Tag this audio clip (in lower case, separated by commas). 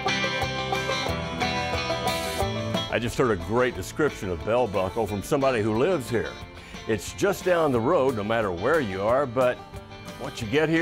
speech, music